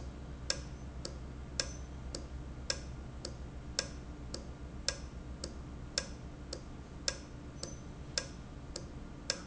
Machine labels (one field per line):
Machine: valve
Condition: normal